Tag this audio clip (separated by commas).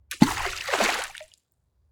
Splash, Liquid, Water